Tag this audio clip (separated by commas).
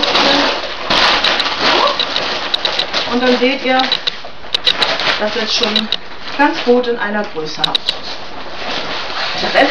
Speech